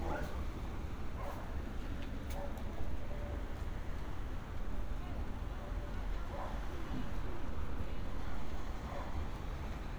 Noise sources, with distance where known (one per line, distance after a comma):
dog barking or whining, far